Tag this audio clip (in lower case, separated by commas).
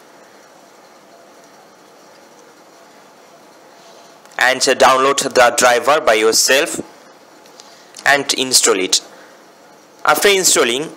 speech